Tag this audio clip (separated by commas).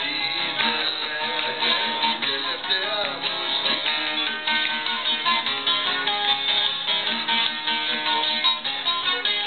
Music, Traditional music